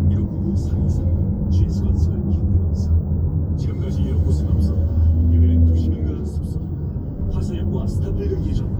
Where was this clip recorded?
in a car